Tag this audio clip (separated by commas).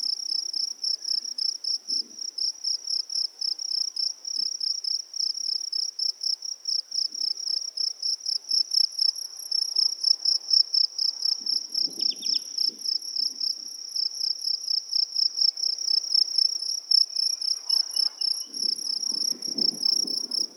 Animal, Wild animals, Cricket, Insect